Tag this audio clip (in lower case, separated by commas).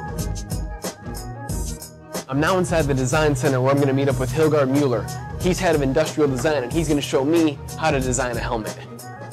speech, music